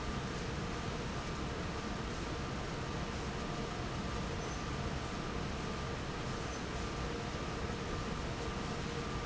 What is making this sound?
fan